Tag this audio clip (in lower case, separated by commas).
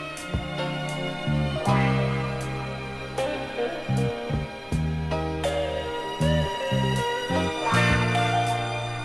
music, orchestra